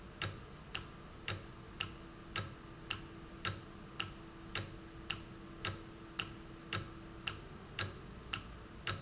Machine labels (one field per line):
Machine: valve